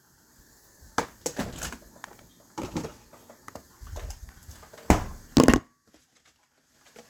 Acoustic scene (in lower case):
kitchen